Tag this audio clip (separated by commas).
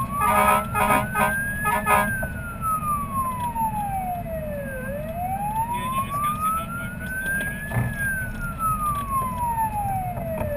Vehicle, Speech, fire truck (siren), Emergency vehicle